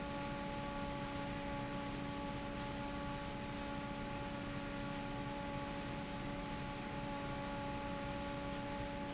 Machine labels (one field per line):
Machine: fan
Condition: normal